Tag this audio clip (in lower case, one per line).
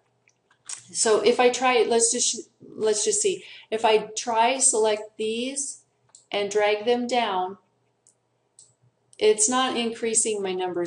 inside a small room
speech